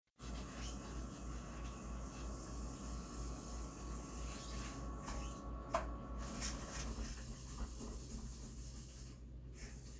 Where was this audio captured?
in a kitchen